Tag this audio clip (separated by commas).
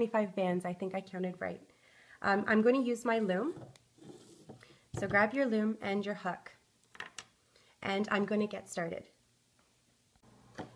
Speech